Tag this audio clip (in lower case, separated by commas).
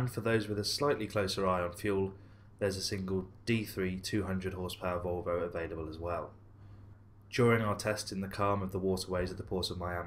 speech